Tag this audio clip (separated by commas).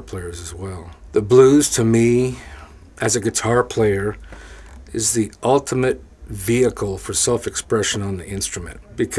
Speech